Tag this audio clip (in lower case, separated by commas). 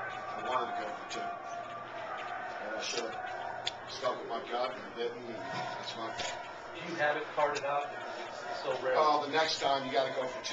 speech